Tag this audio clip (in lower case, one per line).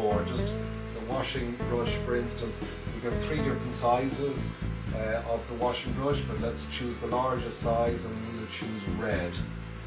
music
speech